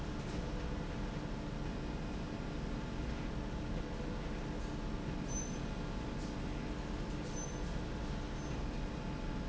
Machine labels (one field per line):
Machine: slide rail